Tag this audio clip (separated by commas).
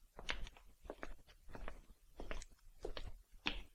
footsteps